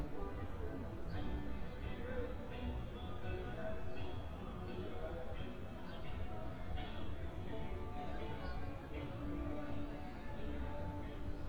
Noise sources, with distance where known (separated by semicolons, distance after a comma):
music from a fixed source, far